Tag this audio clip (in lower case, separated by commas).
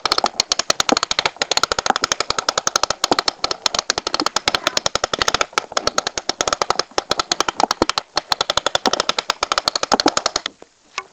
mechanisms